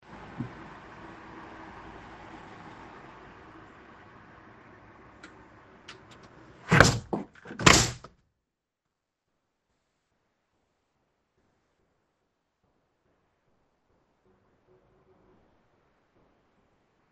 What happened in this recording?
I was looking out of the window. The noise from the cars was too loud, so I closed my window.